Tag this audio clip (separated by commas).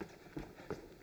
Run